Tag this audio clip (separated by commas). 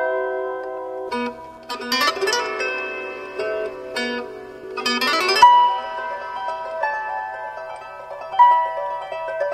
Pizzicato, Harp